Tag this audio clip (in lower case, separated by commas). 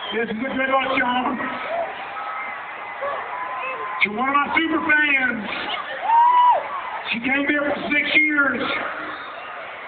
speech, man speaking, narration